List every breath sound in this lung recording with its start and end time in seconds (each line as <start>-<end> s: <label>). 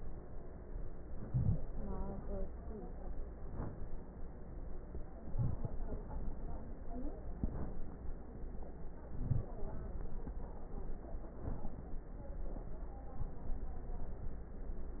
1.13-1.61 s: inhalation
3.34-3.96 s: inhalation
5.21-5.82 s: inhalation
5.21-5.82 s: crackles
7.31-7.78 s: inhalation
9.15-9.62 s: inhalation
11.29-11.90 s: inhalation